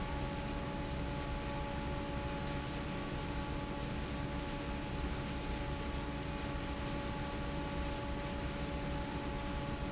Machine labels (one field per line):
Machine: fan